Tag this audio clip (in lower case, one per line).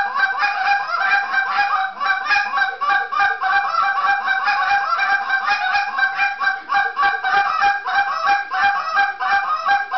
honk